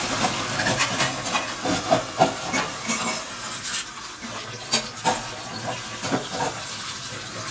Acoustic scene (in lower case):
kitchen